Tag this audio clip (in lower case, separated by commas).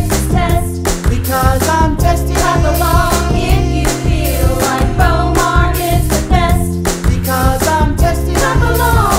pop music, music, happy music